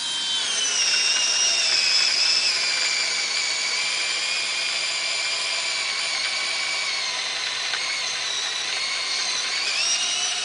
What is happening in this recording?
A power tool being used